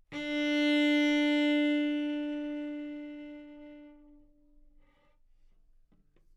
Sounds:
Musical instrument, Bowed string instrument, Music

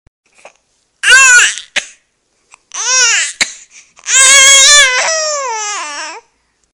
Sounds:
Crying, Human voice

